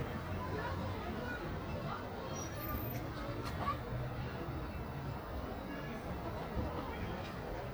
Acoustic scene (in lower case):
residential area